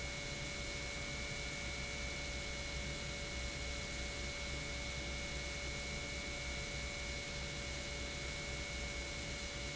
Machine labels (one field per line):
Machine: pump